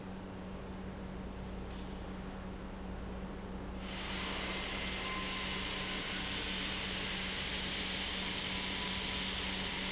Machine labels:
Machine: pump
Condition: normal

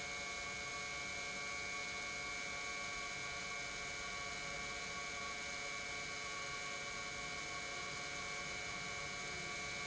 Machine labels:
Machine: pump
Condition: normal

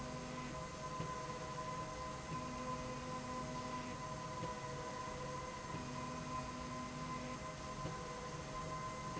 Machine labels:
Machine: slide rail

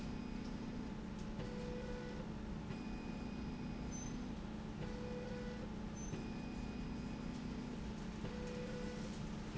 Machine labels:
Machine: slide rail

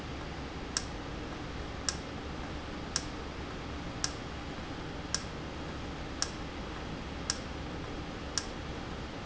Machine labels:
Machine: valve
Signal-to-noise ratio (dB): -6 dB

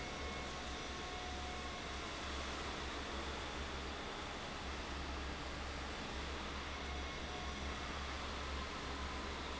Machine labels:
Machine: fan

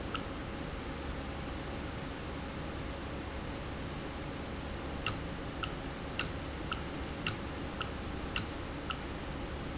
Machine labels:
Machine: valve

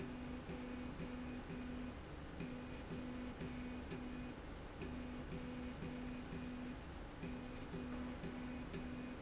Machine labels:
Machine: slide rail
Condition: normal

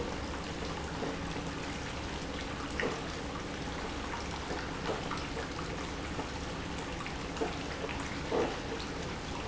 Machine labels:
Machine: pump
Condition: abnormal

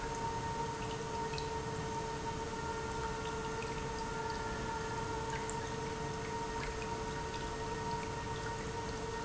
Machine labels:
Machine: pump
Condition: normal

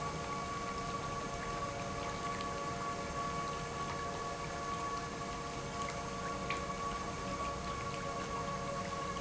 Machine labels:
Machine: pump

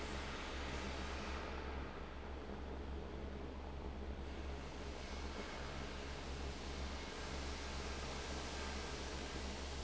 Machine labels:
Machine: fan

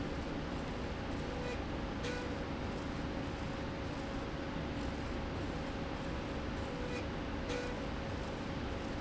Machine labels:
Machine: slide rail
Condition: normal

